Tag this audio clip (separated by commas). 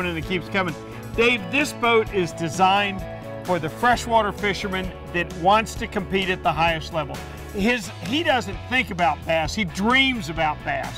Speech, Music